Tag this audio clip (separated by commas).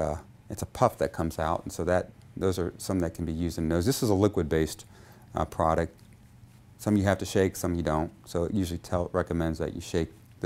Speech